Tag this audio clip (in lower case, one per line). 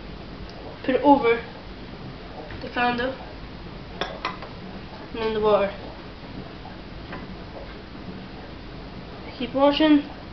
speech